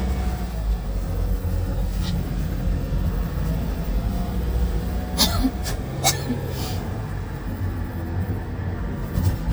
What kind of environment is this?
car